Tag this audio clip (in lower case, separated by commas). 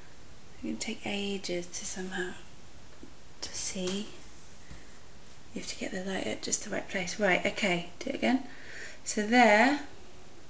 speech